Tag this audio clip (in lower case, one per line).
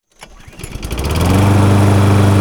engine starting
engine